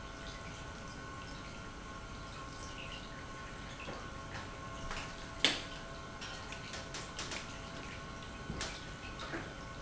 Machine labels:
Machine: pump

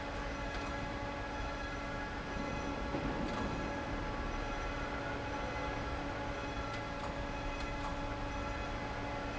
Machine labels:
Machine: fan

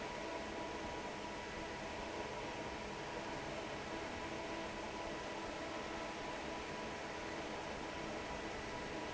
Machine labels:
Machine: fan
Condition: normal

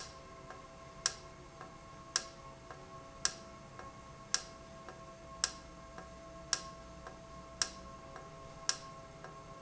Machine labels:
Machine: valve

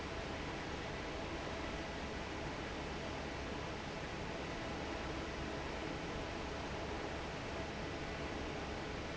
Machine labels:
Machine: fan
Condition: normal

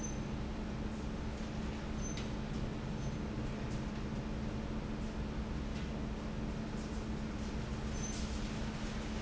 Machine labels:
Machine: fan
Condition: normal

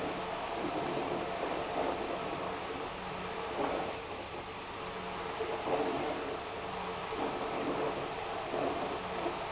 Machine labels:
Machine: pump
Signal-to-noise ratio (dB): 6 dB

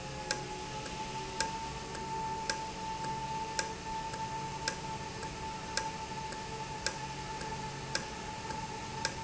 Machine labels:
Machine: valve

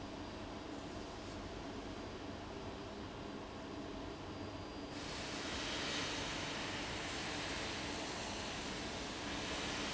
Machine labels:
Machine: fan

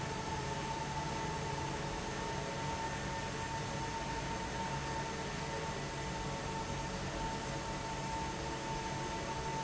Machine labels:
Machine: fan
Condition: abnormal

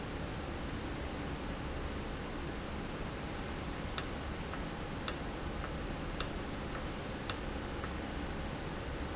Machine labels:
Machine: valve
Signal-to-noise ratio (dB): -6 dB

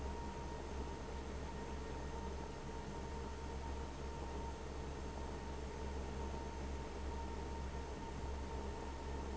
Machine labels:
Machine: fan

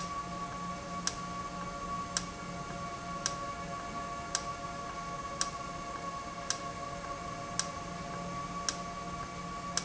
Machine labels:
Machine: valve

